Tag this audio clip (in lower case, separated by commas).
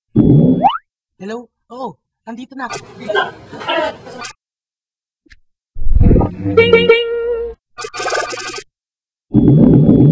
sound effect